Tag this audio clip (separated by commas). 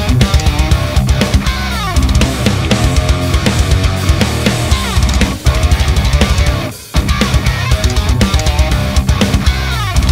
Music